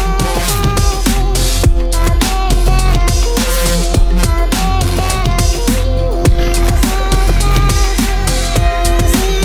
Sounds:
drum and bass
music

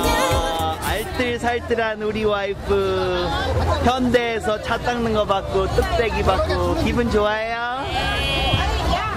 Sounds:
speech
music

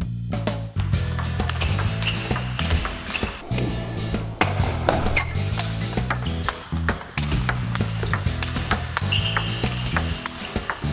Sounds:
music
inside a large room or hall

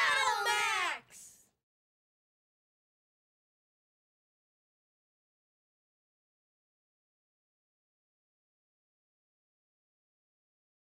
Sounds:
speech

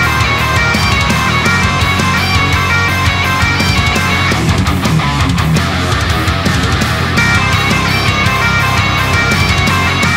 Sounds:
playing bagpipes

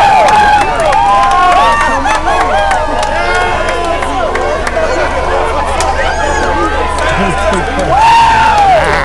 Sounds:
speech

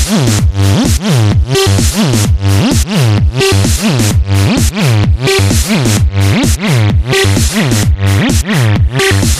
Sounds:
techno
music

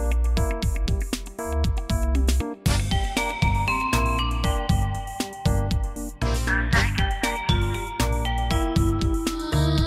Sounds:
music

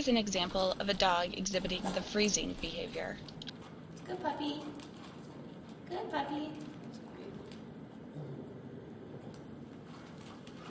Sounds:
speech

